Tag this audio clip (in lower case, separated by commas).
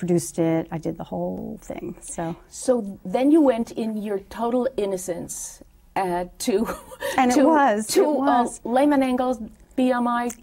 speech, woman speaking